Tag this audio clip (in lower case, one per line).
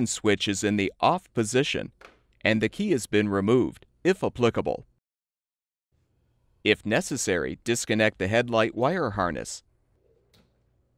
speech